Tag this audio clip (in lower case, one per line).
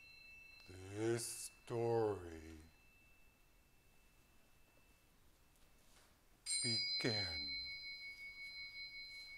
speech